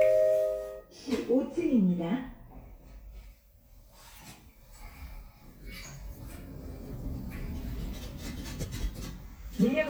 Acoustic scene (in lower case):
elevator